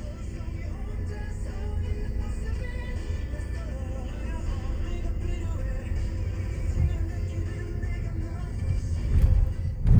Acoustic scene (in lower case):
car